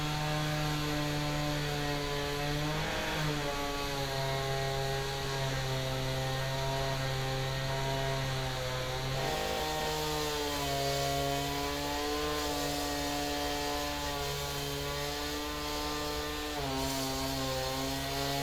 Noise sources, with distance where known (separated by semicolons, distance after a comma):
large rotating saw, near